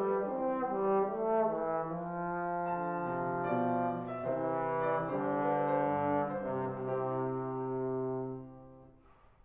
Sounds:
playing trombone, Trombone, Brass instrument

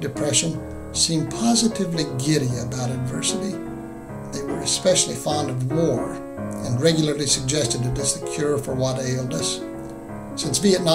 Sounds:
Speech, Music

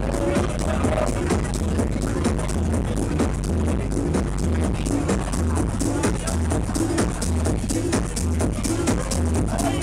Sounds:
Music, Speech, House music

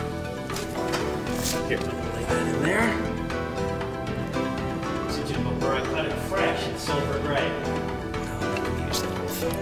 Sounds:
Music, Speech

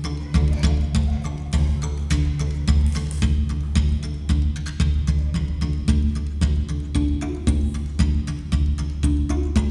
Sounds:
Music

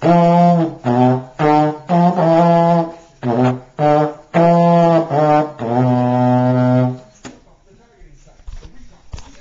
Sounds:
Music

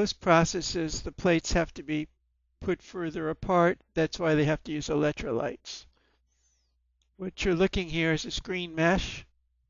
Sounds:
Speech

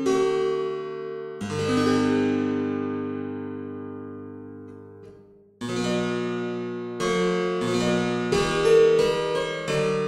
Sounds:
Music, Harpsichord

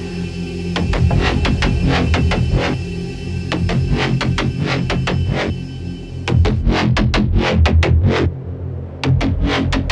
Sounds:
Music, Electronic music, Drum and bass

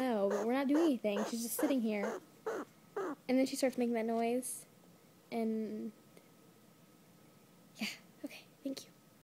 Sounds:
Speech

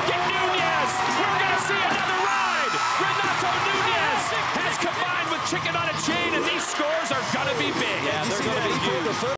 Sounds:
Speech

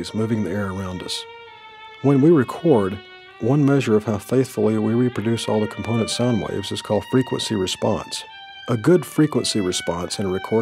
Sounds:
Speech, Music

